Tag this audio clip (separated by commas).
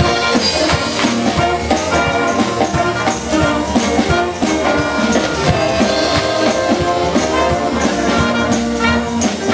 Orchestra, Music